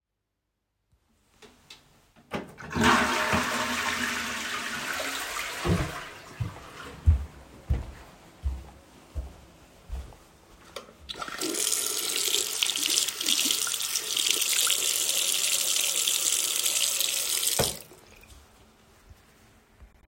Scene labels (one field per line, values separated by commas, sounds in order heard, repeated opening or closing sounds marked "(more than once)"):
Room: lavatory, bathroom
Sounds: toilet flushing, footsteps, running water